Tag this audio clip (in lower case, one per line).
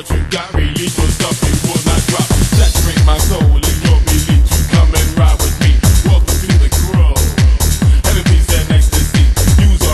music